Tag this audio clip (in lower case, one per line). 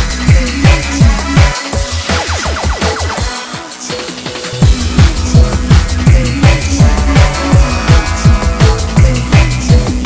music
drum and bass